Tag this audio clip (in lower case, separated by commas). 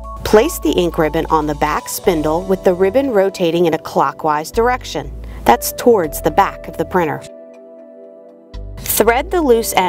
speech, music